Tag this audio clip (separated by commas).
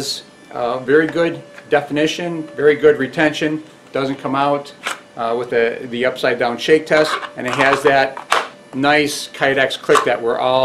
Speech